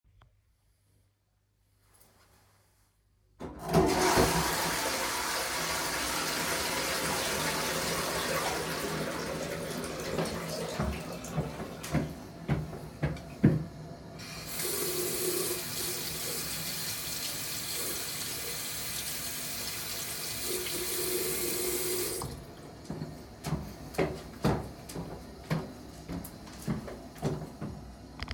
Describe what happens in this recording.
I flush down the toilet, I walk up to the sink, then I wash my hands and leave.